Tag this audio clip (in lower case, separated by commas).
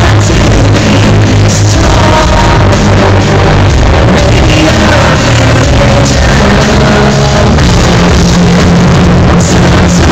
rock music, music